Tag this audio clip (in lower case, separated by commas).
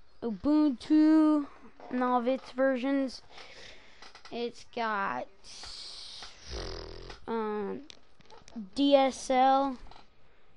speech, inside a small room